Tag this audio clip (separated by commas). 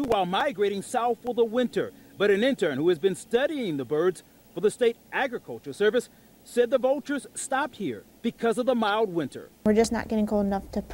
Speech